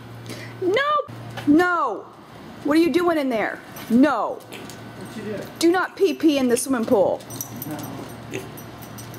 An adult female and an adult male speak, and an oink occurs